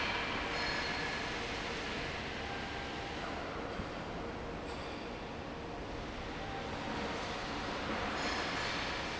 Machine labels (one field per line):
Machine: fan